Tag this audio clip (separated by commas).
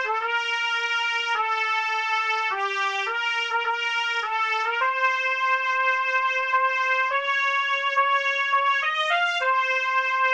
Music, Musical instrument